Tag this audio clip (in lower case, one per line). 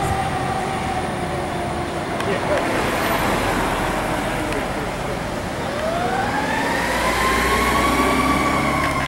fire truck (siren)
emergency vehicle
vehicle